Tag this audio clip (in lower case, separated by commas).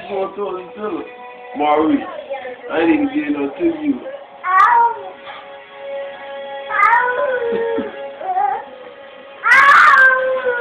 baby cry, speech, music